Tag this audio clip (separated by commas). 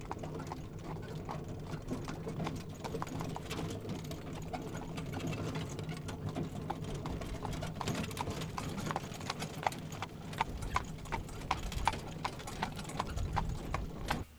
Animal, livestock